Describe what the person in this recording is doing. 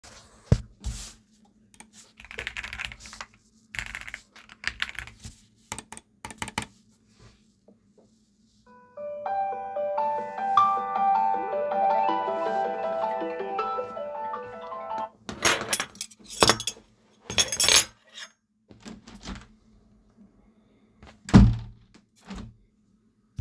I am eating while working and some friend called, also opened the window.